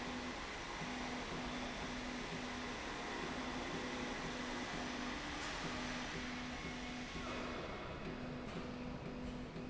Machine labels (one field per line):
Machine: slide rail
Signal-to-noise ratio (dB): 0 dB